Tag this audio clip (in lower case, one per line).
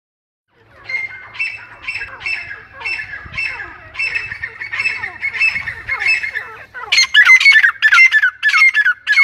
francolin calling